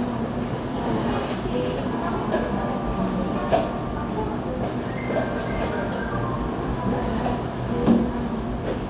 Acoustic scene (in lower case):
cafe